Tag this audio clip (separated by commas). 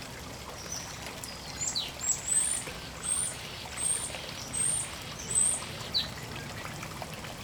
Bird, Wild animals, Water, Animal